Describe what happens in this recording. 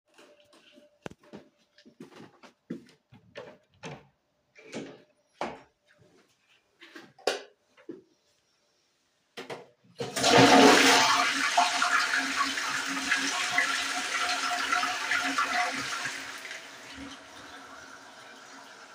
I walked into the bathroom, turned on the light, and closed the door. After using the toilet, I flushed.